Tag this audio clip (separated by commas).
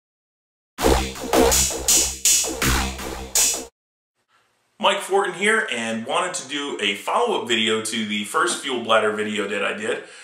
Drum machine